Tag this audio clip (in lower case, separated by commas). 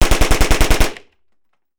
explosion, gunshot